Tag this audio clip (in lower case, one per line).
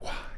whispering
human voice